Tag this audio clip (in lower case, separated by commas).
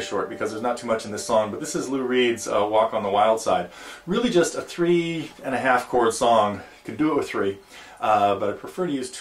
speech